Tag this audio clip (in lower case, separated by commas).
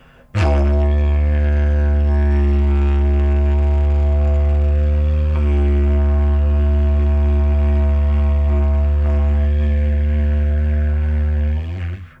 music, musical instrument